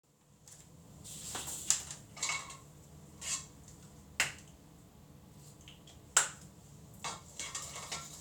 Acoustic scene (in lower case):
restroom